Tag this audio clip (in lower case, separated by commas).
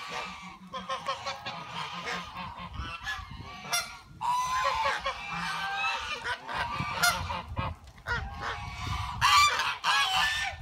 goose honking